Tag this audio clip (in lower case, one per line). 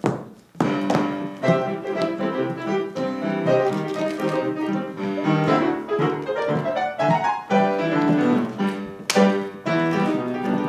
classical music